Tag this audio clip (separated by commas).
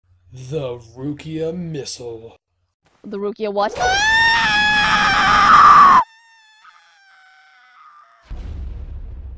Speech